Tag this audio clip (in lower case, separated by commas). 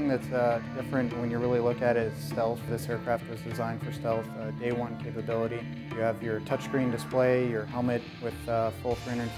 music, speech